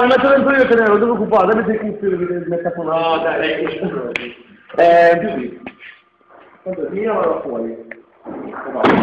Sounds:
speech

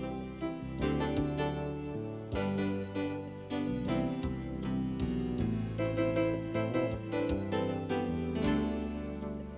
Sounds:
music

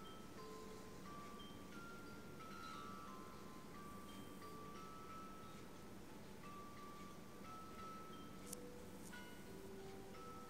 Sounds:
music

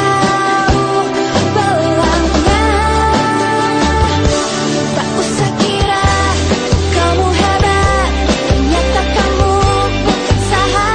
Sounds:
music

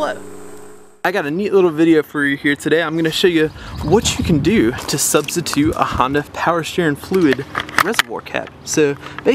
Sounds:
outside, rural or natural
speech

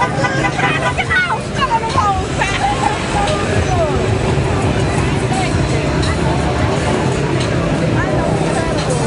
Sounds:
speech
music

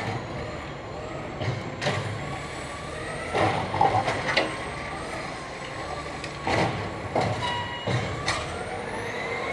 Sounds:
vehicle
truck

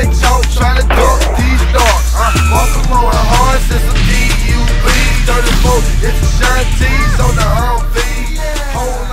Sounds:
skateboard

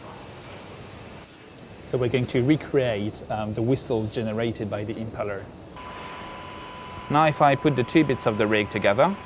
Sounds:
speech

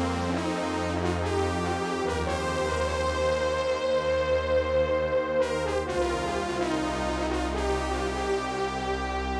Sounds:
music

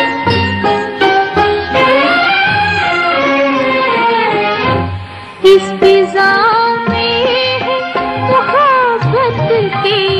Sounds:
music
music of bollywood

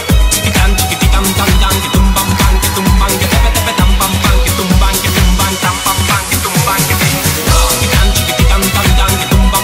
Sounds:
dance music
music

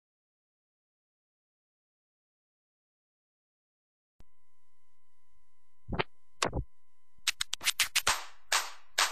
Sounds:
silence
inside a small room
music

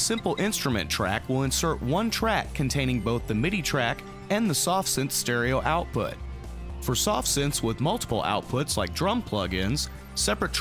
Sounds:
music
speech

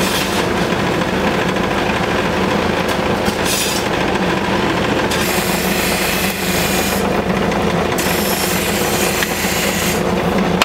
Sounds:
engine

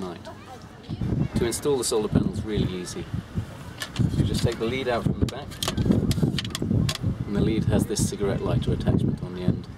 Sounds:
speech

